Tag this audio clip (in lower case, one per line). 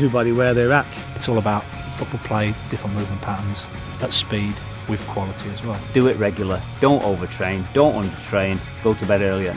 speech
music